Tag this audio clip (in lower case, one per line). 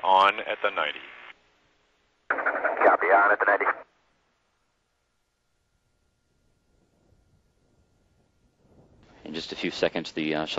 radio